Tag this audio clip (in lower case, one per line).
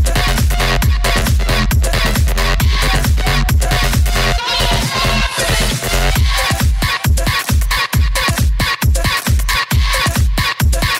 electronic music
electronic dance music
trance music
music
dubstep